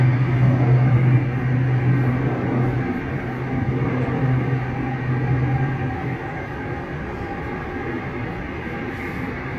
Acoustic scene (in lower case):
subway train